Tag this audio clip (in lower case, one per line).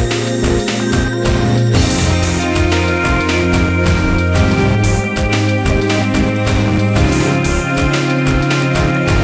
music